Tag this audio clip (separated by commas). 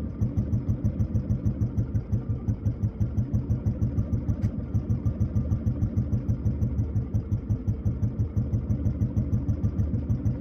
Vehicle, Motorcycle, driving motorcycle